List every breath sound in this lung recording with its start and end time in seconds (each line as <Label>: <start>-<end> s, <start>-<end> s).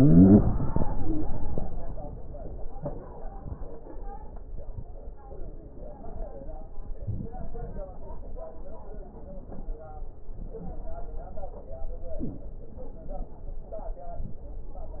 Inhalation: 7.01-7.88 s, 12.08-12.51 s